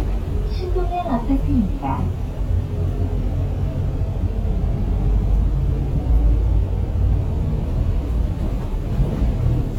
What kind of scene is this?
bus